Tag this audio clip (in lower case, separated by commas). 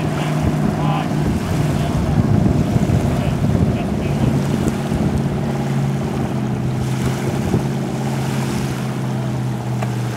sailboat, sailing, speech